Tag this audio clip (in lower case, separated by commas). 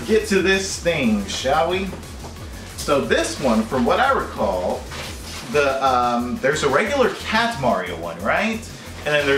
music, speech